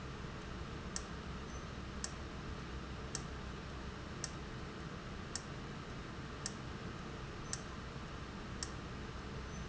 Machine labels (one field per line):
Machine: valve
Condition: abnormal